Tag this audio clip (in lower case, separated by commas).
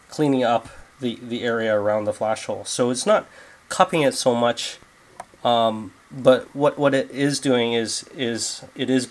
speech